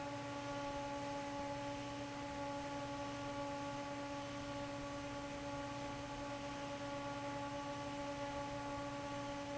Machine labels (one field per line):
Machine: fan